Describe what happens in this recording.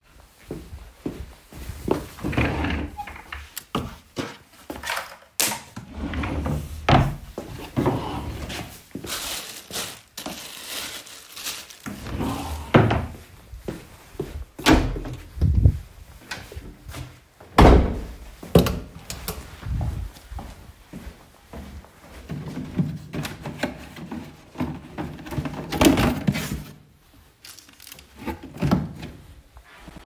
I walked towards a drawer opened it started looking for something closed the drawer opened another one started looking for it there couldnt find it. I walked into the hallway opened the door searched a box in the hallway and found it.